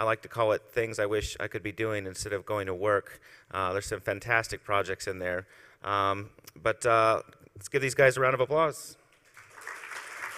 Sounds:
speech

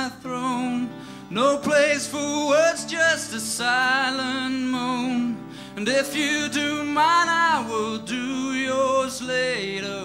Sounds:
music

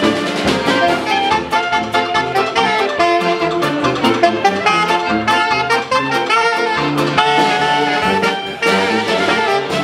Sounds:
sound effect, music

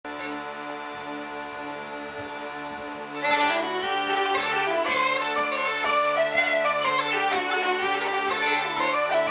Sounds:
playing bagpipes, music, bagpipes

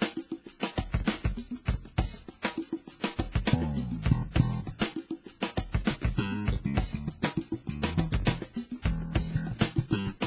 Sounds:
plucked string instrument, music, guitar, musical instrument, bass guitar

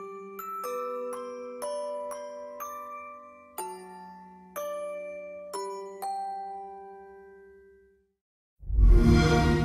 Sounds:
marimba, glockenspiel, mallet percussion

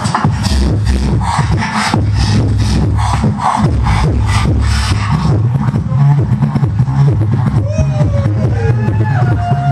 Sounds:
beatboxing, vocal music

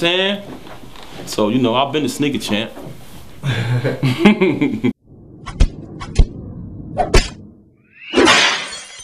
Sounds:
shatter, inside a small room, speech

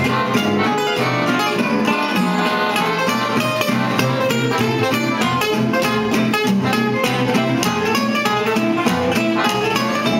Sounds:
musical instrument, blues, guitar, music, plucked string instrument

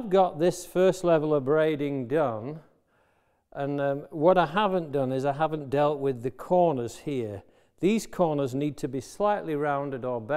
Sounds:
planing timber

